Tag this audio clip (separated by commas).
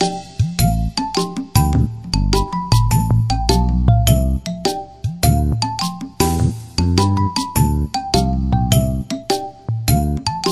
Music, Video game music